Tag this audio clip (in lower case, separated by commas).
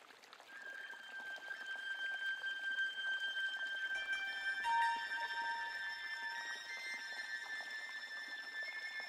sound effect